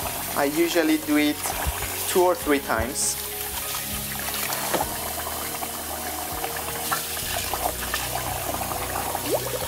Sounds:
speech
sink (filling or washing)
music
faucet

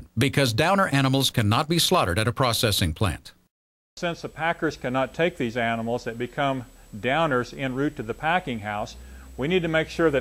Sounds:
speech

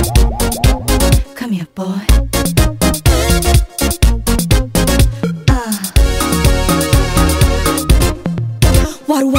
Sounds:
afrobeat

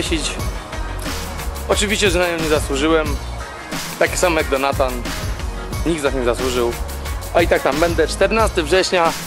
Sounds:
music
speech

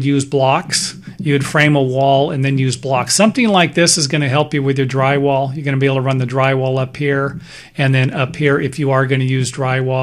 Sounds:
speech

